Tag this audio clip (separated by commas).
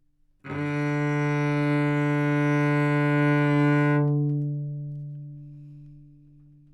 Music, Bowed string instrument, Musical instrument